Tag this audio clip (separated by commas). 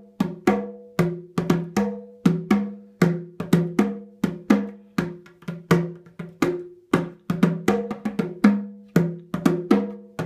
playing bongo